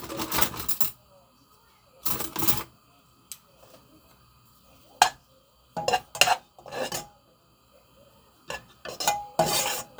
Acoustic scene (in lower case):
kitchen